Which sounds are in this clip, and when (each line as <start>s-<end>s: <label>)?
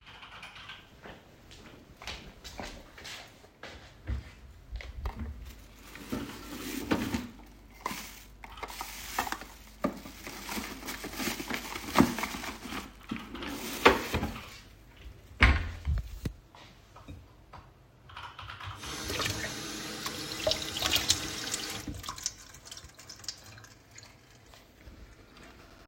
0.0s-1.3s: keyboard typing
1.0s-4.3s: footsteps
6.1s-7.4s: wardrobe or drawer
12.6s-14.6s: keyboard typing
15.4s-16.4s: wardrobe or drawer
18.0s-19.3s: keyboard typing
18.8s-24.1s: running water